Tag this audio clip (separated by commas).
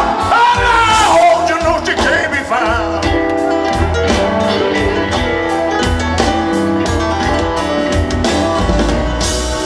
Music